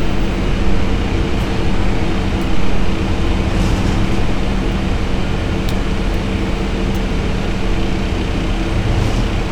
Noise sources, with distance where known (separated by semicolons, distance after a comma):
unidentified impact machinery, near